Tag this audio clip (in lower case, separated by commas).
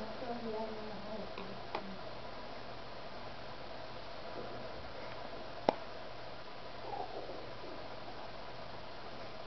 speech